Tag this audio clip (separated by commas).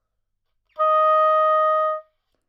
Music, Musical instrument, Wind instrument